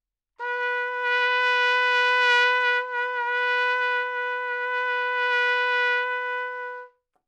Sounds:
musical instrument
trumpet
music
brass instrument

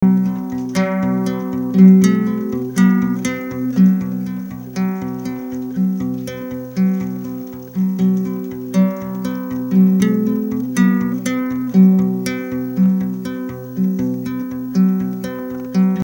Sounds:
music
plucked string instrument
guitar
musical instrument
acoustic guitar

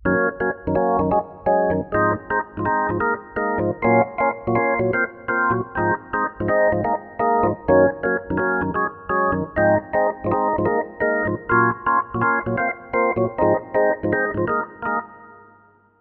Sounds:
keyboard (musical)
organ
music
musical instrument

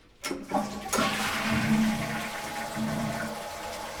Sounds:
toilet flush
domestic sounds
water

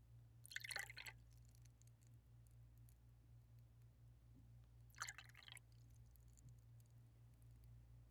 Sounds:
liquid

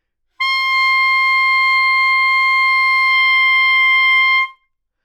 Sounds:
music
musical instrument
woodwind instrument

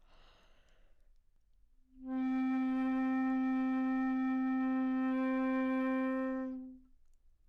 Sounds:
musical instrument
woodwind instrument
music

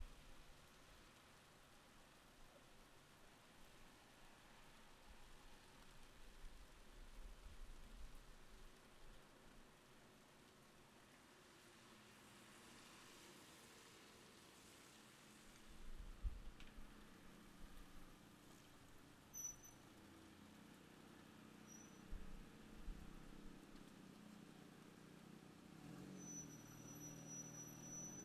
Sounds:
water
rain

